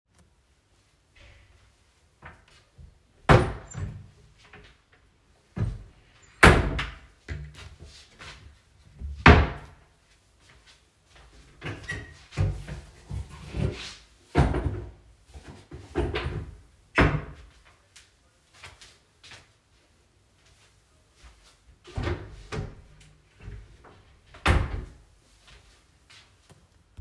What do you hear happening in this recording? I searched for my boots in the wardrobe. I opened several of them in the hallway, until I found it. I dropped my boots to the floor, then I closed the last wardrobe. As the wardrobe was large, I needed to walk to the individual doors.